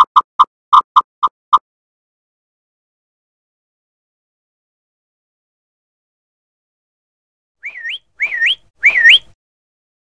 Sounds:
Sound effect

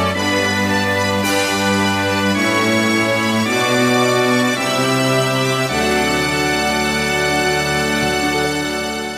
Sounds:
Organ, Music

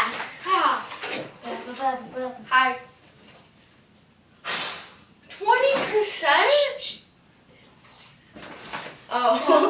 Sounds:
Bathtub (filling or washing), Water

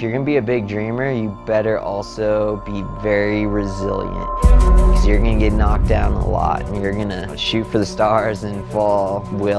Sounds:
Speech, Music

